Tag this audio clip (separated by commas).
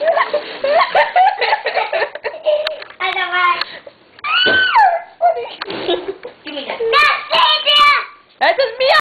Speech